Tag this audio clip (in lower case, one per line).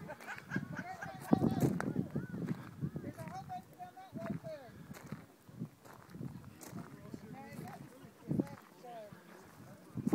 speech